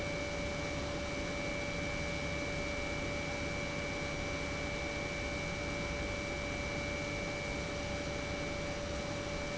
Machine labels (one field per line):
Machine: pump